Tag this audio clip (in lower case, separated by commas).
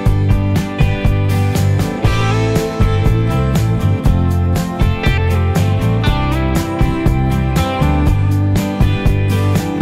music